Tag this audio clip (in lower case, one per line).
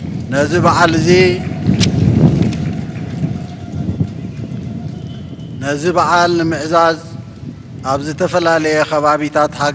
speech
man speaking
narration